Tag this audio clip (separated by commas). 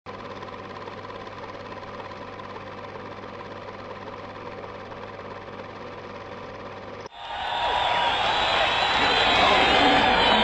inside a public space, Vehicle